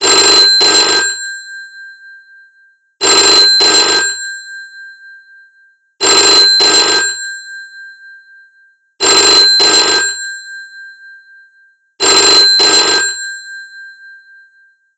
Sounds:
telephone, alarm

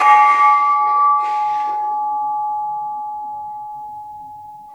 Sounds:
percussion, musical instrument, music, gong

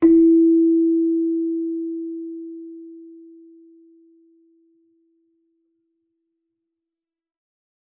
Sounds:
music, musical instrument, keyboard (musical)

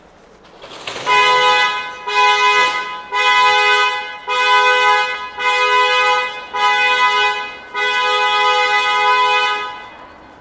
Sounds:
alarm

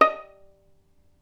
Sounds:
music, musical instrument, bowed string instrument

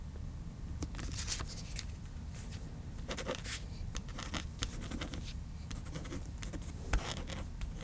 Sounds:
domestic sounds, writing

